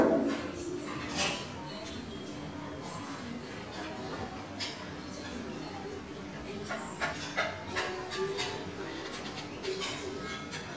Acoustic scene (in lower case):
restaurant